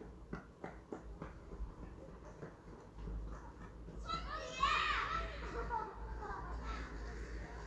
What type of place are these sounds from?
residential area